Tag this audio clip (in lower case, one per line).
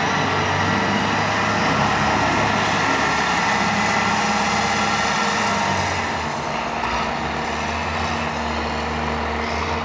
vehicle
outside, rural or natural